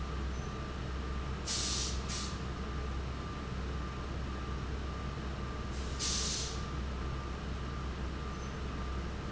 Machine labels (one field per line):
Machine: fan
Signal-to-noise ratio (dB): -6 dB